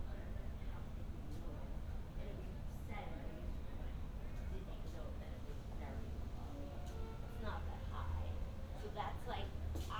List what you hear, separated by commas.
music from an unclear source, person or small group talking